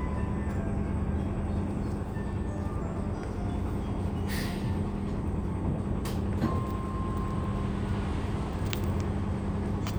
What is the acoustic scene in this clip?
bus